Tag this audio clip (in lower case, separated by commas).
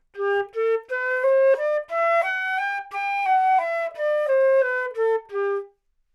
music, woodwind instrument, musical instrument